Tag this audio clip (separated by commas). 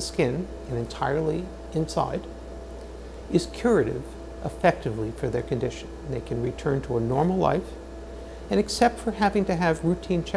Speech